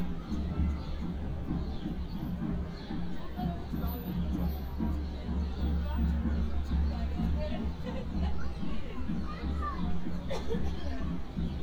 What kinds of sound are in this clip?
music from an unclear source, person or small group talking